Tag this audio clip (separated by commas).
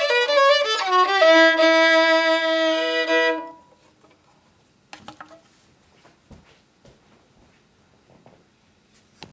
Musical instrument, Violin, Music